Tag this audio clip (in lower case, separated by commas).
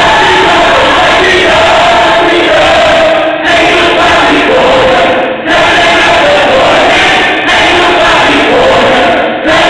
choir, singing, singing choir, inside a large room or hall